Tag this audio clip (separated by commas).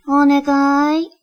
Human voice